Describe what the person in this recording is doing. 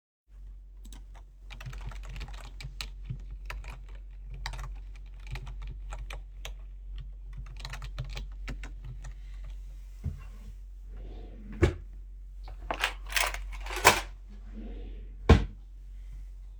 I work on my PC and open a drawer while sitting in my chair to store a pencilcase. Afterwars I close the drawer again.